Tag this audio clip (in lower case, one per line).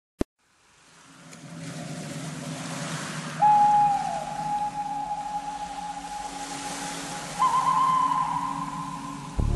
music